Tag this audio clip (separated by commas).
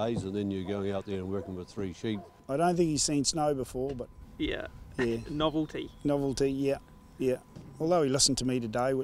Speech